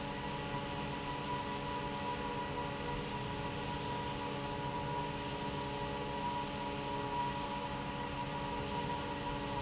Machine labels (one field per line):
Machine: fan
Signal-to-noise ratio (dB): -6 dB